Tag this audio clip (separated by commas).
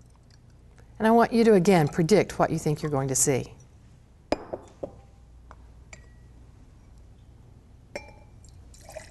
Liquid, Speech, Slosh